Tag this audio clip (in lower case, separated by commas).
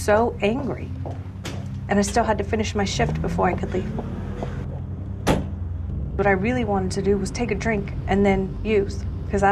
speech, inside a large room or hall